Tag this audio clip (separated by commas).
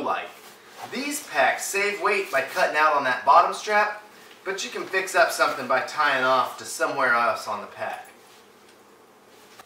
inside a small room, Speech